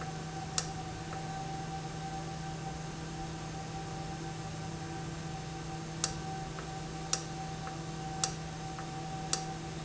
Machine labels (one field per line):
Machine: valve